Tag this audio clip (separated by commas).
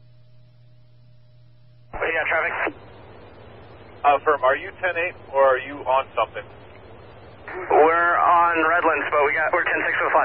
police radio chatter